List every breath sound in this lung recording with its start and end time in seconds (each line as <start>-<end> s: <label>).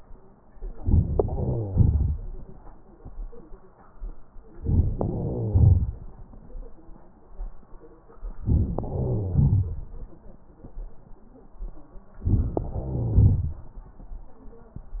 0.58-1.27 s: crackles
0.60-1.29 s: inhalation
1.27-2.77 s: exhalation
4.56-5.02 s: inhalation
4.98-6.28 s: exhalation
8.30-8.80 s: inhalation
8.81-10.27 s: exhalation
12.20-12.67 s: inhalation
12.67-13.81 s: exhalation